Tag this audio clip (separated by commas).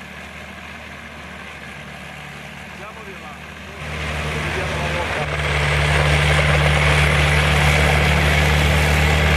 Vehicle, Speech, revving